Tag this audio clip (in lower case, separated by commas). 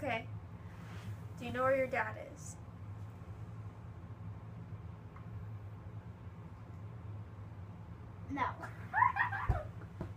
kid speaking, inside a small room, speech